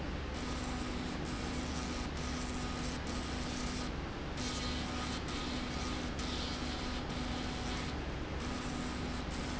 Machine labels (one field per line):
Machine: slide rail